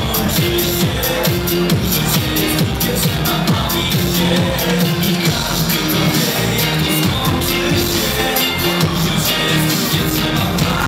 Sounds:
Music

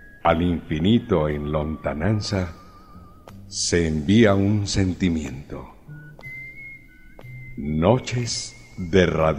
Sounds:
Speech, Music

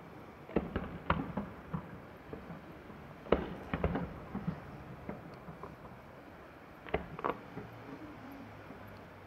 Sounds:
Fireworks

